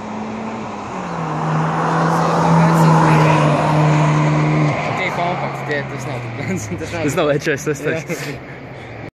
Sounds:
Speech

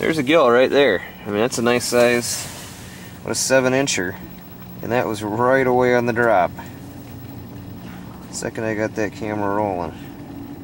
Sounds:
Speech

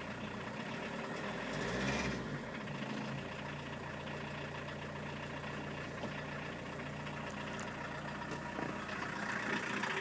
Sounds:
Car, Vehicle

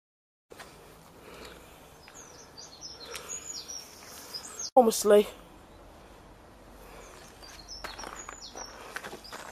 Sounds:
Speech, tweet, outside, rural or natural, bird song

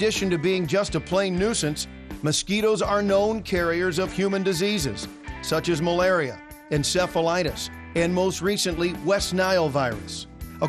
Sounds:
Speech, Music

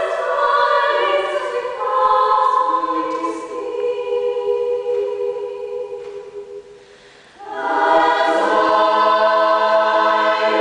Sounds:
Female singing, Choir

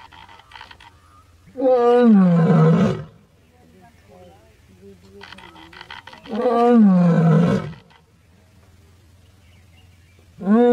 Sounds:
lions roaring

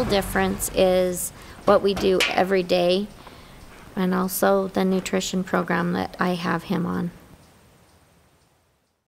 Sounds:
Speech

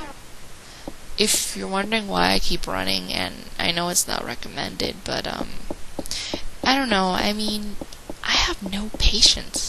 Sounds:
Tick-tock, Speech

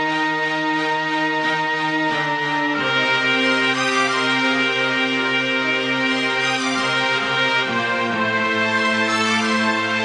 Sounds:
Soul music, Music

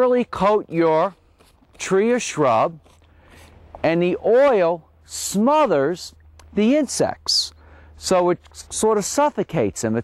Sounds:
Speech, Spray

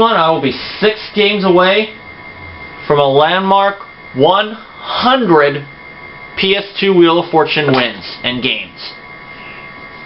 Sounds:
Speech

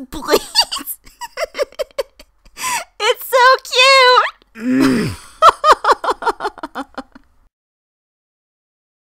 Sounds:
Speech

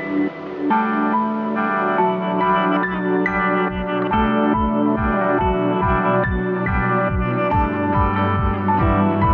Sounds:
Music, Synthesizer

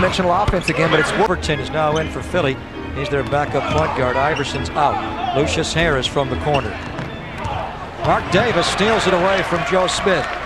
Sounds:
Music, Speech, Basketball bounce, inside a large room or hall

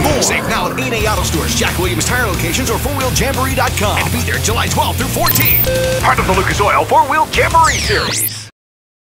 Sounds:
Music, Speech

